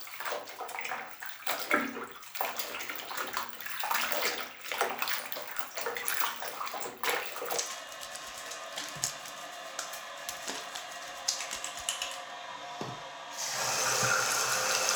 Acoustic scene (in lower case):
restroom